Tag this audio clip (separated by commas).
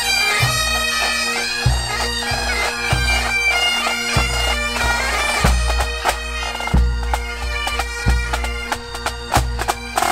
playing bagpipes